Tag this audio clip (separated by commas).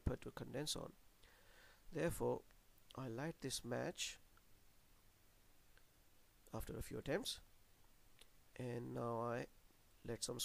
Speech